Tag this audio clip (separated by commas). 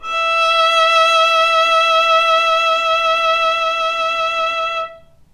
Music, Musical instrument, Bowed string instrument